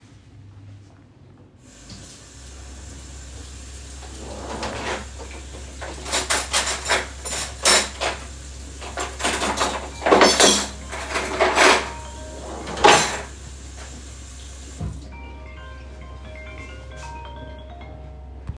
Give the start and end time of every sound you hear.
1.5s-15.0s: running water
3.8s-5.6s: wardrobe or drawer
6.0s-8.2s: cutlery and dishes
8.9s-11.9s: cutlery and dishes
10.7s-18.6s: phone ringing
12.2s-13.4s: wardrobe or drawer

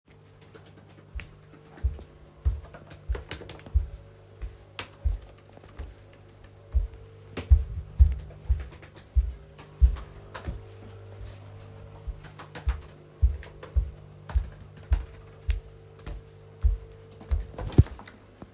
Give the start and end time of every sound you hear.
0.2s-18.5s: keyboard typing
1.1s-18.2s: footsteps

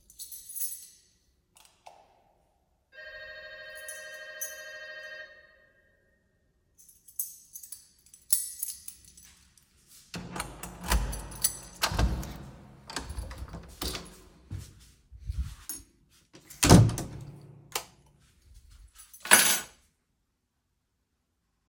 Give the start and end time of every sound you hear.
0.1s-1.0s: keys
1.4s-2.0s: light switch
2.9s-5.4s: bell ringing
7.1s-8.8s: keys
10.0s-14.5s: door
14.4s-16.5s: footsteps
16.3s-17.5s: door
17.7s-17.9s: light switch
19.0s-19.8s: keys

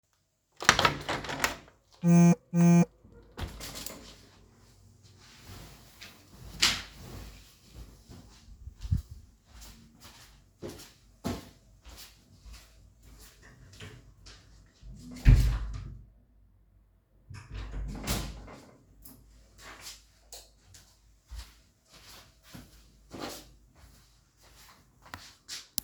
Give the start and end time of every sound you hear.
0.5s-1.8s: window
2.0s-3.0s: phone ringing
3.3s-4.1s: window
8.1s-14.6s: footsteps
14.9s-16.1s: door
17.3s-18.6s: door
19.0s-25.8s: footsteps
20.2s-20.6s: light switch

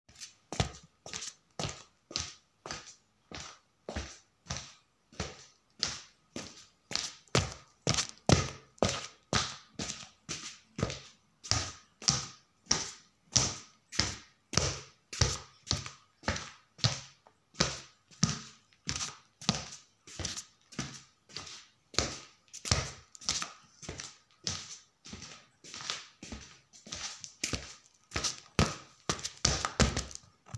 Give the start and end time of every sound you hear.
0.0s-30.6s: footsteps

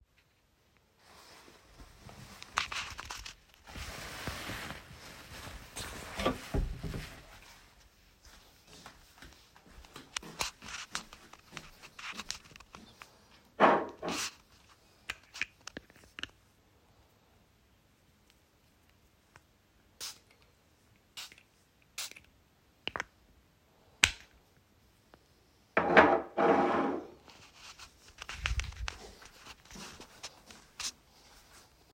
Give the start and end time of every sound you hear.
6.1s-7.2s: wardrobe or drawer
8.6s-13.3s: footsteps
29.0s-31.2s: footsteps

